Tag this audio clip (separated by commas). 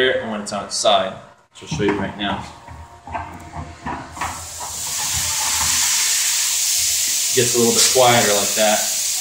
Speech, inside a small room